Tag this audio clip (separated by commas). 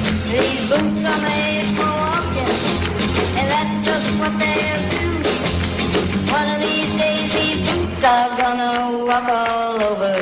Music